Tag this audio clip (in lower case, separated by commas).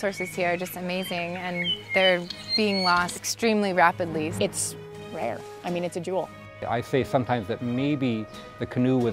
speech, music